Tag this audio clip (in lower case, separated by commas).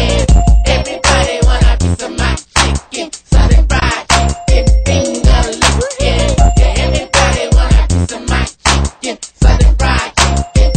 music